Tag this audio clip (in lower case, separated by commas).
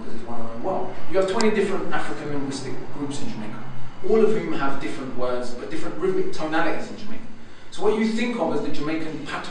speech, monologue, man speaking